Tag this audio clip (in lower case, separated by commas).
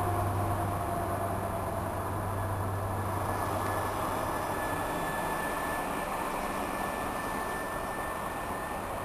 train, outside, urban or man-made, vehicle